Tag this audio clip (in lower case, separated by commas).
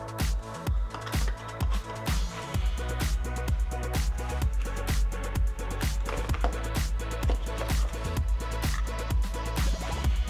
music